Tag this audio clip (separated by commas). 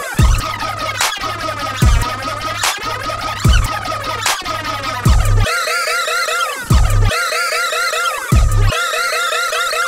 Electronic music, Hip hop music, House music, Scratching (performance technique), Music